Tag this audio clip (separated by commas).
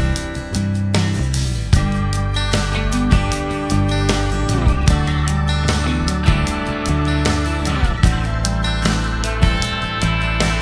Music